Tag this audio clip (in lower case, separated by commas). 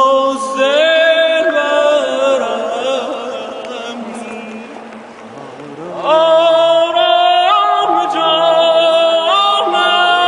male singing